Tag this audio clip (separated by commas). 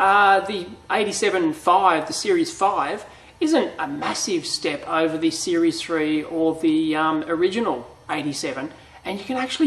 Speech, inside a small room